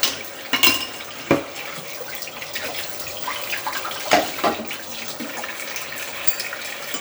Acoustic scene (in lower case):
kitchen